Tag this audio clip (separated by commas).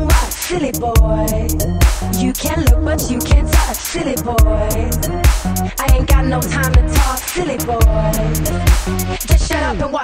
Electronic music, Dubstep, Music